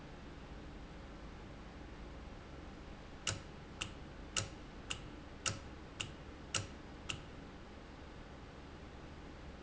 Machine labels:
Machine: valve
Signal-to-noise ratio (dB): 6 dB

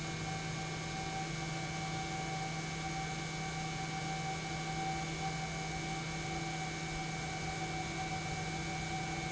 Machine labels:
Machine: pump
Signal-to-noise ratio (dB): -6 dB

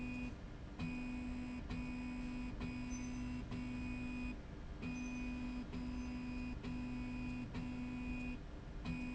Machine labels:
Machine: slide rail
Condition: normal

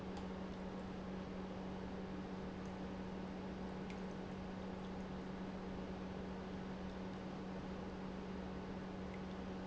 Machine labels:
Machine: pump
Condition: normal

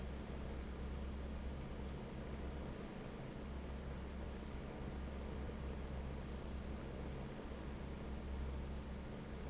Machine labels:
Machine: fan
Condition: normal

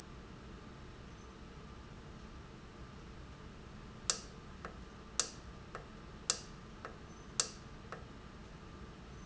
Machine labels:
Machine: valve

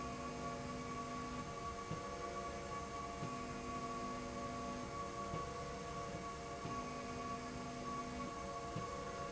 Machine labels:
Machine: slide rail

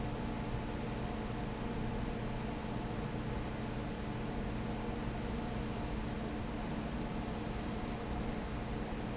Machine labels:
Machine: fan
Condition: abnormal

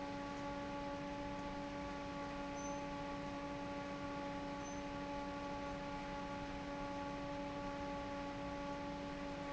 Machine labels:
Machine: fan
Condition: normal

